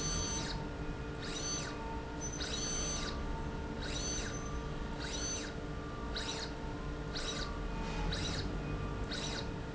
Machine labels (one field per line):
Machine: slide rail